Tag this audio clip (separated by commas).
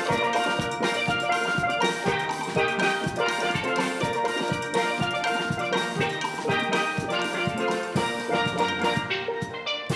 playing steelpan